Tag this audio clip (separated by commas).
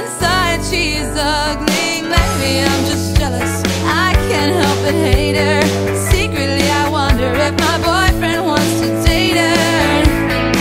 Music